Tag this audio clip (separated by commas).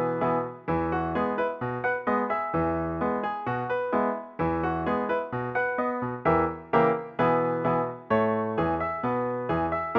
Music